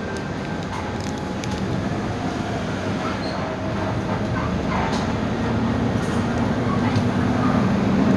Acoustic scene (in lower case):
bus